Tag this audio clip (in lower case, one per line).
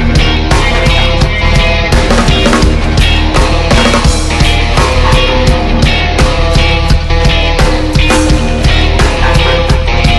music